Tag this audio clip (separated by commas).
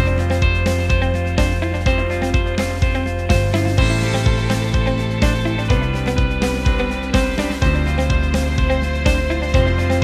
Music